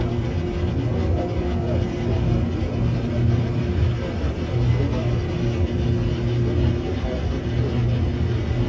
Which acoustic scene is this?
subway train